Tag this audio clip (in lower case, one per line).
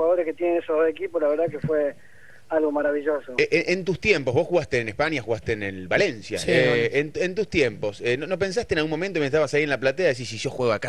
speech